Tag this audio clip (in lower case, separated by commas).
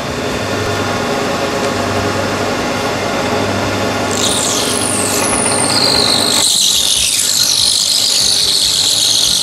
tools